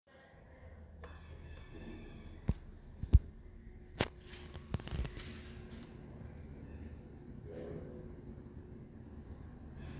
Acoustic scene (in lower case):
elevator